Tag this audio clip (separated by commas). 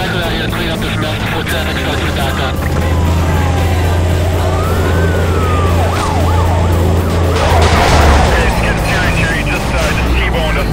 Speech, Music, Vehicle